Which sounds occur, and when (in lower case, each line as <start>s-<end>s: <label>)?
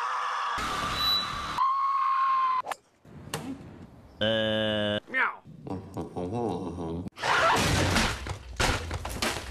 0.0s-2.6s: screaming
0.6s-1.6s: music
0.9s-1.6s: squeal
2.6s-2.8s: swoosh
3.0s-4.2s: mechanisms
3.3s-3.4s: tap
3.3s-3.6s: human voice
3.9s-5.0s: wind
4.1s-4.2s: bird song
4.2s-5.0s: human voice
5.1s-5.4s: man speaking
5.4s-7.1s: mechanisms
5.7s-5.8s: human voice
5.9s-6.0s: tick
6.0s-7.1s: human voice
7.2s-7.6s: screaming
7.5s-8.4s: breaking
8.2s-9.5s: mechanisms
8.6s-8.9s: breaking
9.1s-9.5s: breaking